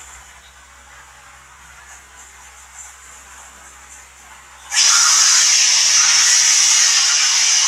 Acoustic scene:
restroom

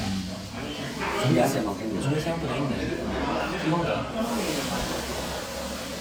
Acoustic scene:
restaurant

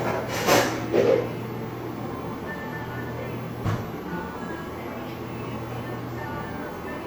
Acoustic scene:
cafe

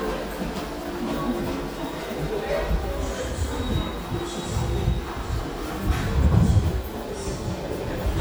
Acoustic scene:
subway station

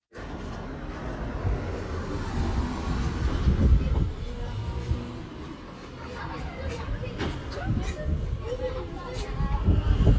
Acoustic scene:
residential area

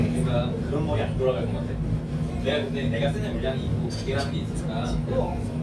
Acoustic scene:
restaurant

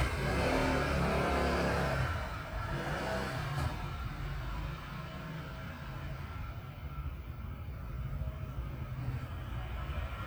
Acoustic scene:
residential area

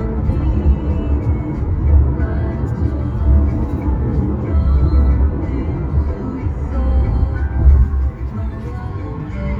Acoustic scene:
car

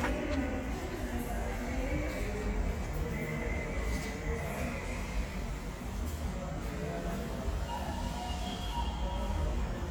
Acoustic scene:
subway station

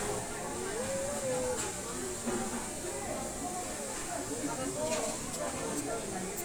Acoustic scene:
restaurant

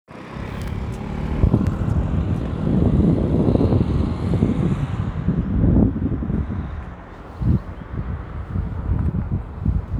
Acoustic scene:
residential area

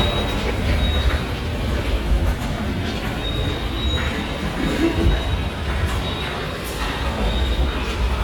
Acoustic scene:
subway station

